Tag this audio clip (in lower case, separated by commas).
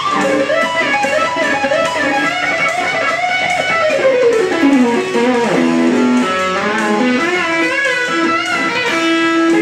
plucked string instrument, musical instrument, music, guitar